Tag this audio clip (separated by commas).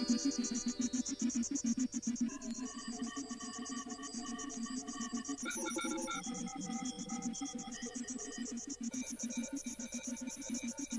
inside a small room, Music